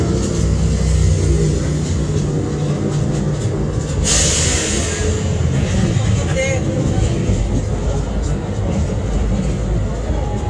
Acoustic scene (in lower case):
bus